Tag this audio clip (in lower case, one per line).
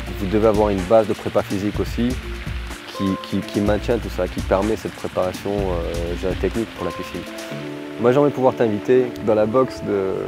music
speech